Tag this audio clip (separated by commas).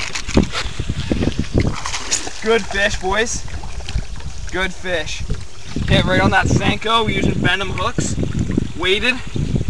Speech, outside, rural or natural